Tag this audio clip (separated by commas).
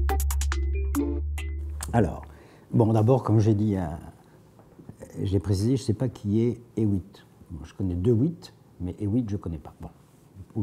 Music, Speech